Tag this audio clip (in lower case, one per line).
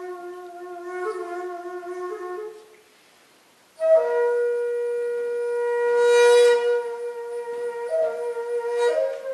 flute
woodwind instrument